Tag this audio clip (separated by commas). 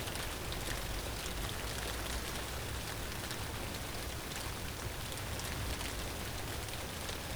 Rain, Water